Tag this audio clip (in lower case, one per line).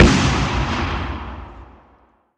explosion
boom